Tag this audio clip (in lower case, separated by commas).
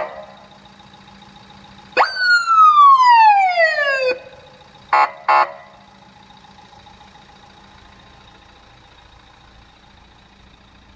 emergency vehicle, police car (siren), siren